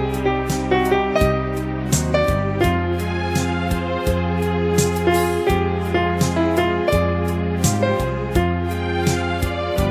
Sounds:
background music, music

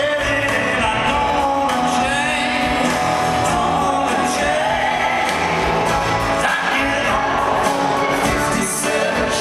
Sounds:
music, rock and roll

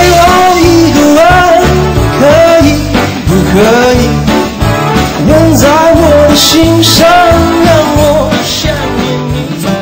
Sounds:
music

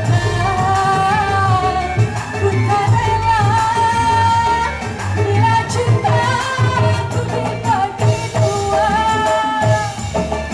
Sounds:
music of asia, music

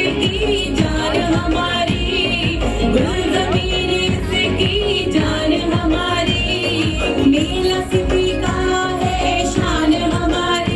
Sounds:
music, female singing

